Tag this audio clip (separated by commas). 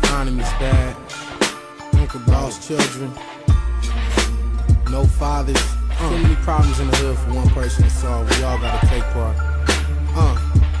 Soul music, Music